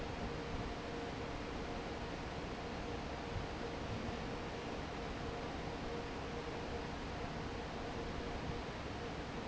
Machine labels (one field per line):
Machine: fan